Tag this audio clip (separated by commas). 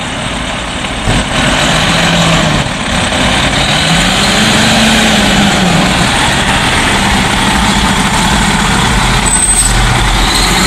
Siren, Fire engine, Emergency vehicle